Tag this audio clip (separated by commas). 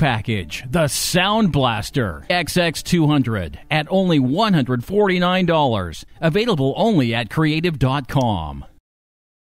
Speech